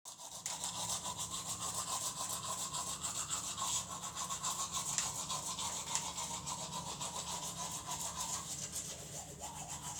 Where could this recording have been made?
in a restroom